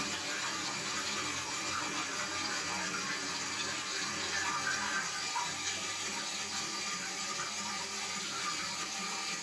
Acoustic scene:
restroom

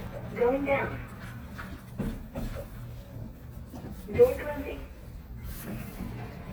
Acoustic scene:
elevator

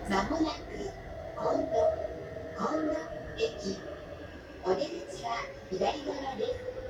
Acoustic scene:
subway train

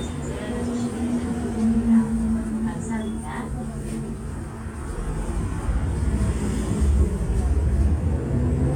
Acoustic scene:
bus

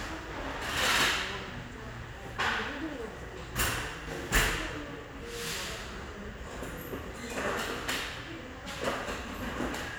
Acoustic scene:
restaurant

